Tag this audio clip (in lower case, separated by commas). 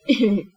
laughter, human voice